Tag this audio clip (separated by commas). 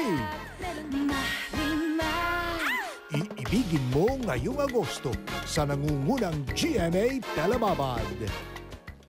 Speech, Music